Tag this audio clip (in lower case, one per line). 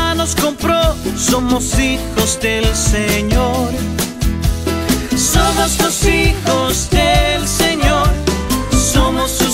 music